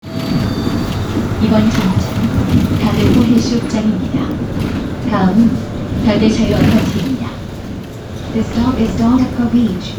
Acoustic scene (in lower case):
bus